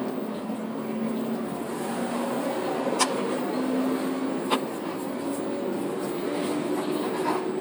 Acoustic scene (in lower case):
bus